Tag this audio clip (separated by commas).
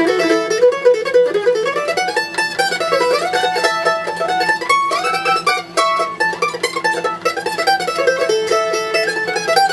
Country, Mandolin, Music